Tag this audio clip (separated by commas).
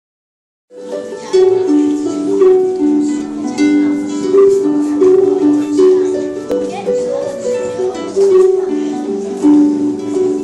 playing harp